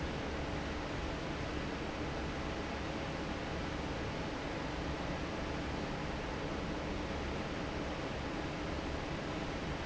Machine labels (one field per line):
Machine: fan